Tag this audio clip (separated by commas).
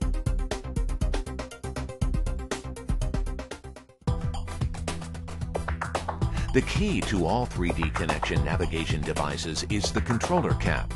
Speech, Music